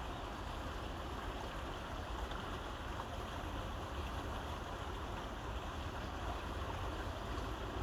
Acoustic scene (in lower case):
park